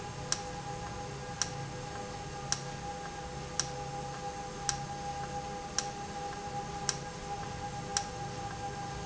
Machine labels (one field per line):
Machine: valve